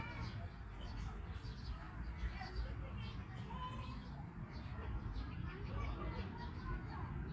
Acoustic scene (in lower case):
park